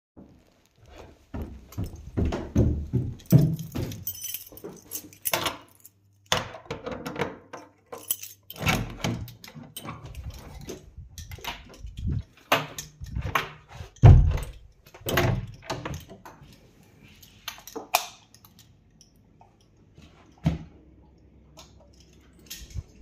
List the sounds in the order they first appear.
footsteps, keys, door, light switch